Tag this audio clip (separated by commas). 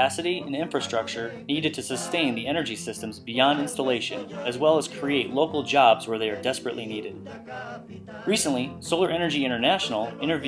Speech